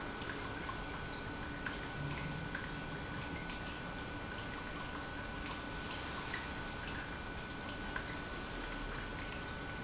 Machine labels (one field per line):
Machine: pump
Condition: normal